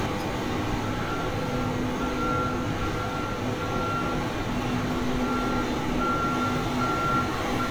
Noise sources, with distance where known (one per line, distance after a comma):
large-sounding engine, near
unidentified alert signal, near